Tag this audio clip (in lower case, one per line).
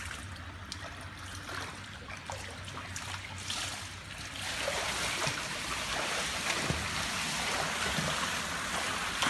swimming